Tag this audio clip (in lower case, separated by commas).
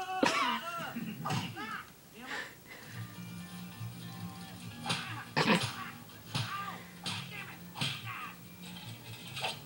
speech, music